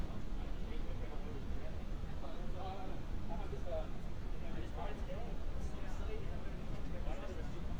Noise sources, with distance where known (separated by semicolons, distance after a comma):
person or small group talking